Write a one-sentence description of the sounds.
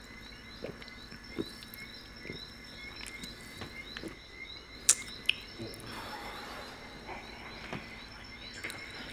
Birds tweeting and a sound of someone swallowing